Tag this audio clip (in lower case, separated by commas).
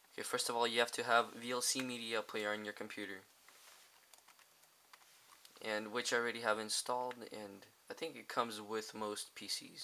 speech